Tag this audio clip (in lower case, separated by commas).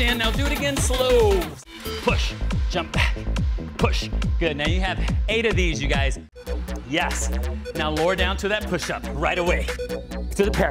speech, music